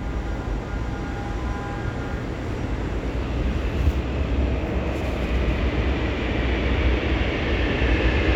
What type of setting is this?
subway station